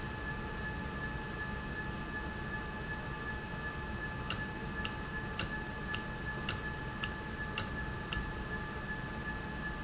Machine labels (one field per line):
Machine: valve